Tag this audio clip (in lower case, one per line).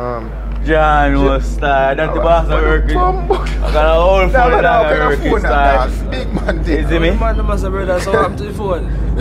speech